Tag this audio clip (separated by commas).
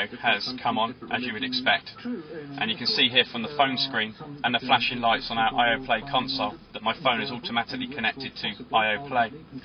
Speech